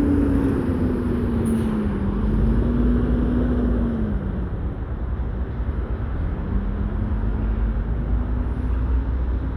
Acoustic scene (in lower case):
street